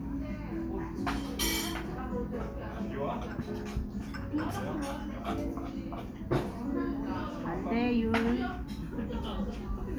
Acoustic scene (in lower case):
cafe